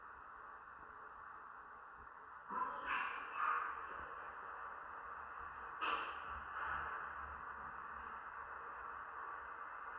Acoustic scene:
elevator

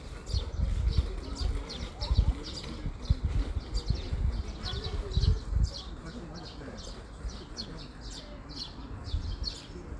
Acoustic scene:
park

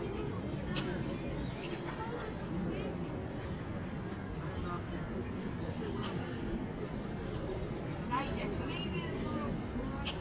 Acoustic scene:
park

